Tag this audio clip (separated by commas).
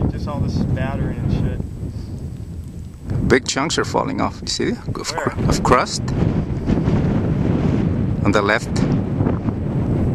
Speech